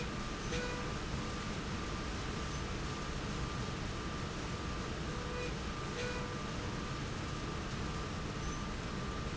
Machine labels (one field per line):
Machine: slide rail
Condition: normal